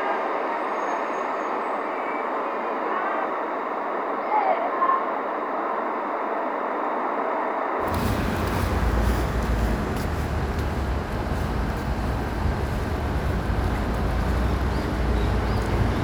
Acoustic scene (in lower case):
street